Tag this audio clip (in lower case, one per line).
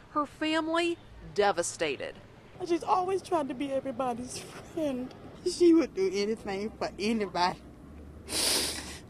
speech